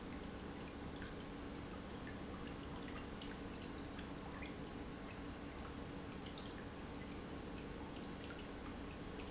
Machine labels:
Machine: pump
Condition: normal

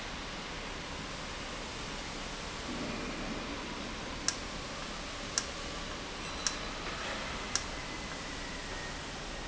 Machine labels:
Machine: valve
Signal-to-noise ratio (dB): -6 dB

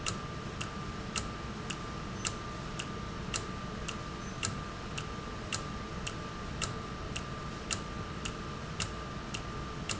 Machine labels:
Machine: valve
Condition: normal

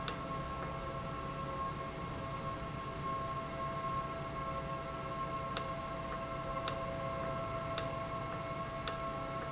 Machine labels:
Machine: valve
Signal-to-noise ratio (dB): -6 dB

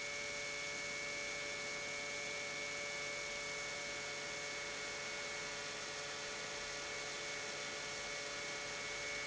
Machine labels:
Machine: pump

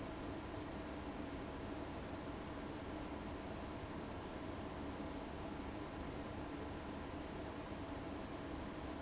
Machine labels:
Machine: fan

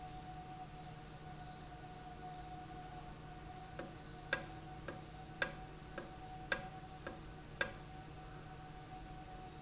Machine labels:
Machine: valve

